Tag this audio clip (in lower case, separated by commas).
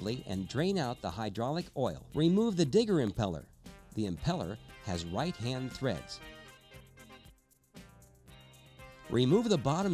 speech, music